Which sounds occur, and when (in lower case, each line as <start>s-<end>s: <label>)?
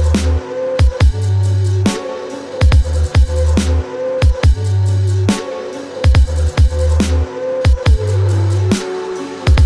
0.0s-9.6s: music